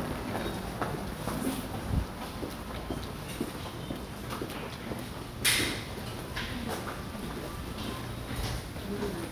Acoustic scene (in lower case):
subway station